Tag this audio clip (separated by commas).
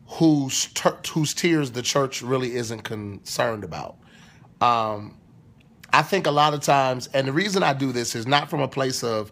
Speech